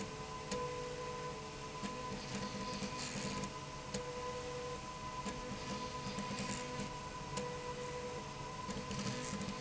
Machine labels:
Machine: slide rail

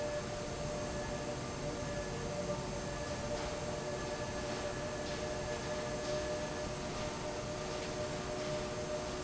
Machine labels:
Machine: fan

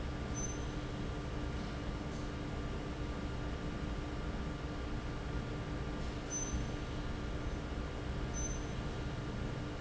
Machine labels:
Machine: fan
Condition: normal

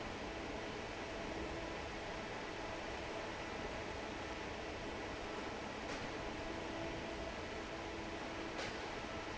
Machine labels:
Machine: fan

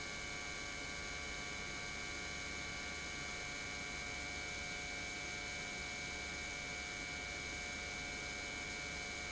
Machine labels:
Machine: pump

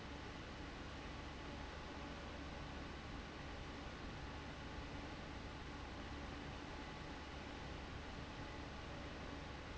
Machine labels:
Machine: fan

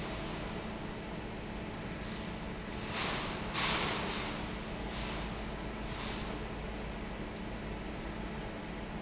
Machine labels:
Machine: fan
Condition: normal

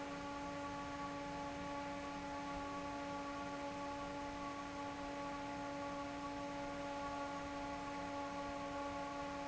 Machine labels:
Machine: fan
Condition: normal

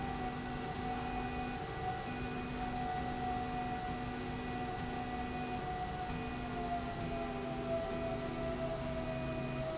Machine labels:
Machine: slide rail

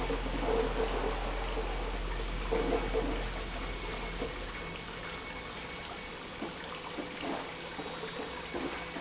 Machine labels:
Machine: pump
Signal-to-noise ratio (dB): -6 dB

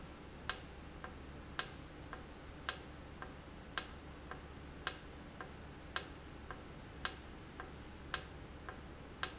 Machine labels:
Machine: valve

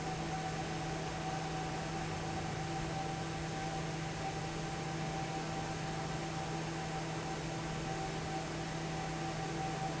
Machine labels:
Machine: fan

